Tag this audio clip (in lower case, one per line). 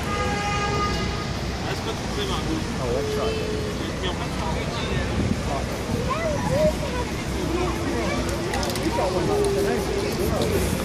speech